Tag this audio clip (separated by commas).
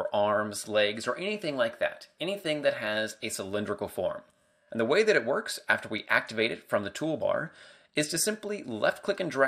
Speech